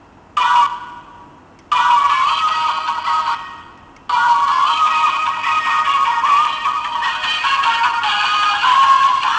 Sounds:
Music

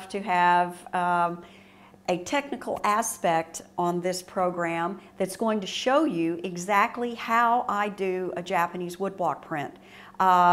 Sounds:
Speech

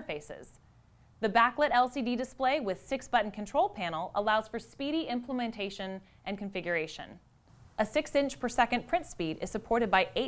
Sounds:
Speech

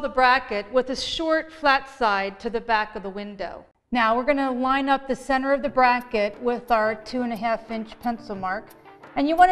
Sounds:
Music, Speech

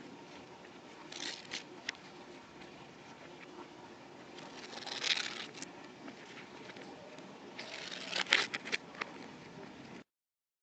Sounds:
ripping paper

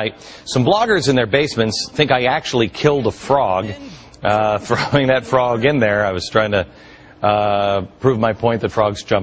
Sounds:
Speech

